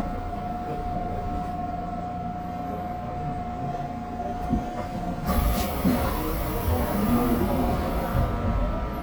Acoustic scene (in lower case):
subway train